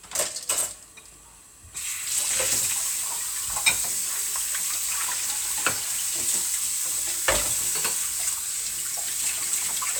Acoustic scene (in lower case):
kitchen